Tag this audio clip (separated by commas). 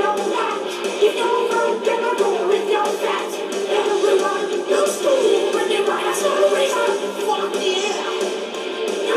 Music, Pop music